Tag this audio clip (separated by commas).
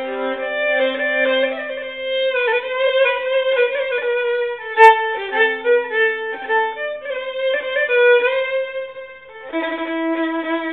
Musical instrument, Music, fiddle